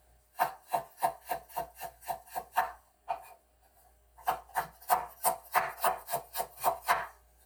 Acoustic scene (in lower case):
kitchen